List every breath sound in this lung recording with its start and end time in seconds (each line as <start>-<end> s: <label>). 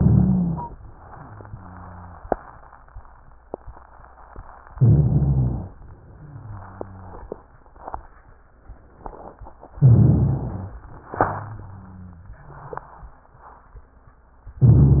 0.00-0.73 s: inhalation
0.00-0.73 s: stridor
1.07-2.22 s: exhalation
1.07-2.22 s: wheeze
4.72-5.69 s: inhalation
4.72-5.69 s: stridor
6.11-7.26 s: exhalation
6.11-7.26 s: wheeze
9.78-10.75 s: inhalation
9.78-10.75 s: stridor
11.19-12.34 s: exhalation
11.19-12.34 s: wheeze
14.61-15.00 s: inhalation
14.61-15.00 s: stridor